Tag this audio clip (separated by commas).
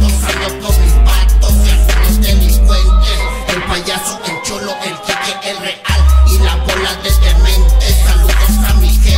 Ska, Music